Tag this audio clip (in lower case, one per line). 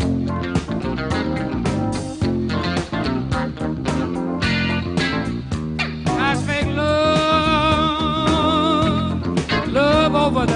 strum
guitar
musical instrument
plucked string instrument
music
bass guitar